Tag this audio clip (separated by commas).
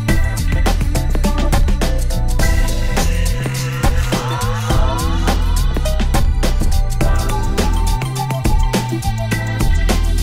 Music